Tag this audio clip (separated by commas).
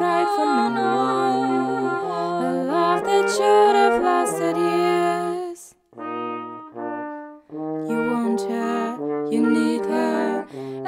Music, Trombone